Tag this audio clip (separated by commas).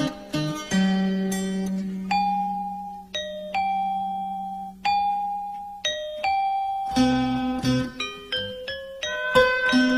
Ding-dong, Music